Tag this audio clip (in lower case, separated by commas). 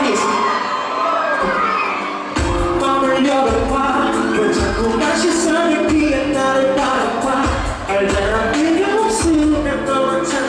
singing, inside a large room or hall, music